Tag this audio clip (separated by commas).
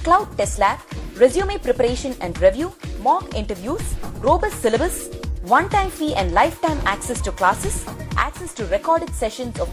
Music, Speech